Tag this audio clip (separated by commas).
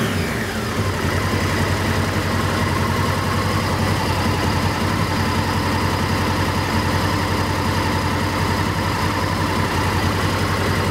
Clatter